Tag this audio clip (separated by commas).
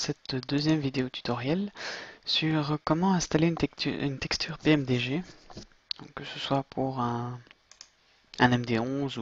Speech